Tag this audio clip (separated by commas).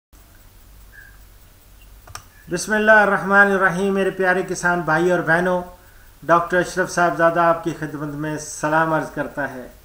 Speech, Clicking